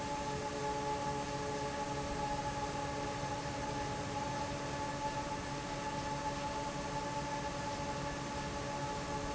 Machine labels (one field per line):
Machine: fan